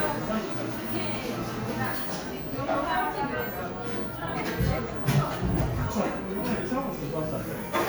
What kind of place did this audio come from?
cafe